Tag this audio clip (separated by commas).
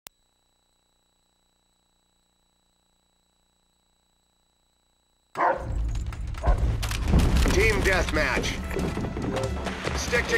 Music, Speech